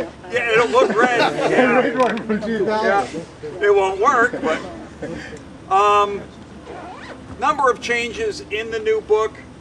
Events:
0.0s-0.3s: speech
0.0s-9.4s: conversation
0.0s-9.6s: motor vehicle (road)
0.0s-9.6s: wind
0.3s-1.3s: man speaking
1.0s-1.9s: giggle
1.4s-3.3s: man speaking
1.9s-2.2s: generic impact sounds
3.4s-4.8s: man speaking
4.9s-5.4s: breathing
5.3s-5.4s: generic impact sounds
5.7s-6.3s: man speaking
6.6s-7.2s: zipper (clothing)
7.4s-9.4s: man speaking

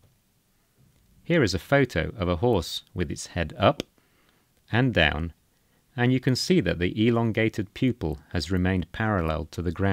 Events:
0.0s-9.9s: background noise
1.3s-3.8s: man speaking
3.9s-4.5s: breathing
4.7s-5.3s: man speaking
5.4s-5.9s: breathing
5.9s-9.9s: man speaking

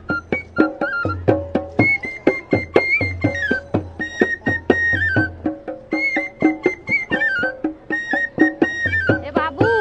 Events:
0.0s-9.8s: music
9.2s-9.8s: woman speaking

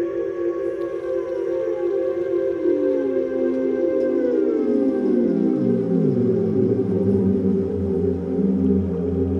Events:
0.0s-9.3s: music
0.7s-6.6s: sound effect

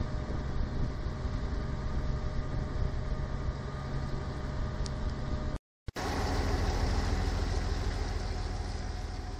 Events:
0.0s-5.5s: ocean
0.0s-5.6s: motorboat
0.0s-5.6s: wind
4.8s-4.9s: tick
5.1s-5.1s: tick
5.8s-5.9s: tick
5.8s-9.3s: wind
5.9s-9.3s: motorboat
5.9s-9.3s: ocean

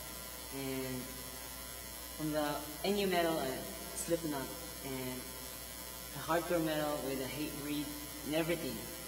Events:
0.0s-9.0s: mechanisms
0.5s-1.1s: male speech
2.2s-2.6s: male speech
2.8s-3.6s: male speech
3.9s-4.5s: male speech
4.7s-5.2s: male speech
6.1s-8.0s: male speech
8.3s-8.8s: male speech

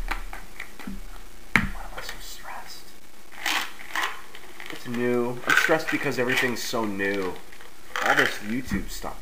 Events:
0.0s-9.2s: mechanisms
0.1s-0.3s: tick
0.5s-0.8s: tick
0.8s-1.0s: tap
1.1s-1.3s: generic impact sounds
1.5s-1.6s: tick
1.8s-2.1s: generic impact sounds
2.0s-2.9s: whispering
3.4s-3.6s: generic impact sounds
3.7s-4.2s: generic impact sounds
4.3s-5.1s: generic impact sounds
4.8s-7.4s: male speech
5.4s-5.7s: generic impact sounds
5.8s-6.5s: generic impact sounds
6.7s-7.6s: generic impact sounds
7.9s-8.4s: generic impact sounds
8.0s-9.0s: male speech
8.6s-8.8s: tap

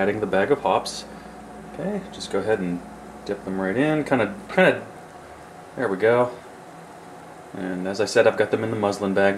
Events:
0.0s-1.0s: male speech
0.0s-9.3s: boiling
0.0s-9.3s: mechanisms
1.7s-2.7s: male speech
3.2s-4.3s: male speech
4.4s-4.8s: male speech
5.7s-6.3s: male speech
7.5s-9.3s: male speech

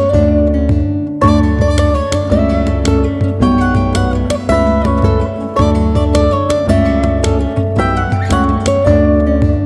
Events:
0.0s-9.6s: music

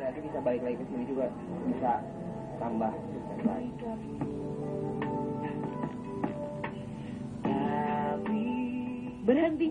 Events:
0.0s-1.3s: male speech
0.0s-9.7s: mechanisms
1.6s-2.0s: male speech
2.6s-3.0s: male speech
3.4s-3.7s: male speech
3.4s-4.1s: male singing
3.8s-9.7s: music
7.4s-9.7s: male singing
9.3s-9.7s: female speech

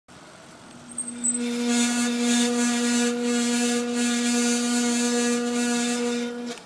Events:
0.0s-6.6s: mechanisms
6.5s-6.6s: generic impact sounds

